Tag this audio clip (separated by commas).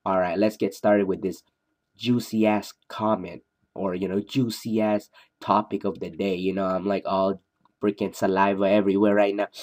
Speech